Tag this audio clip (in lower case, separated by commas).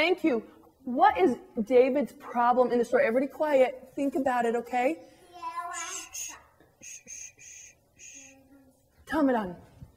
inside a small room, speech, child speech